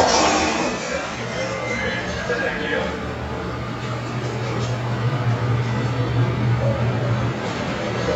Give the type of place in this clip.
elevator